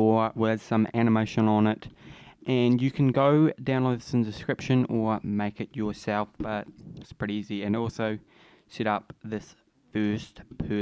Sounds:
speech

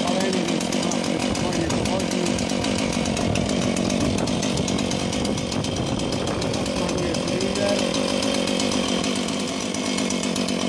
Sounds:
chainsaw
speech

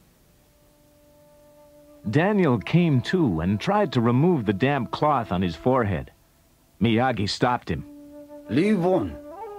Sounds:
music
inside a small room
speech

